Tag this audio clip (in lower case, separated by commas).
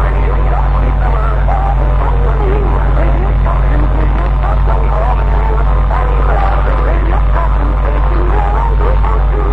radio